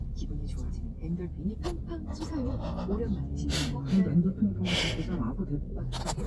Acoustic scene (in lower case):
car